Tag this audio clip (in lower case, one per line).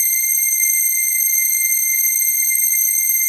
keyboard (musical)
organ
music
musical instrument